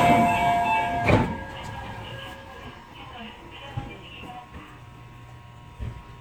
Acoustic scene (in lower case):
subway train